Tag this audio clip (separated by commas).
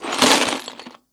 Tools